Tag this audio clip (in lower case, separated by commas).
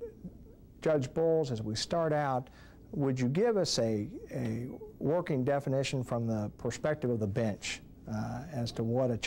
speech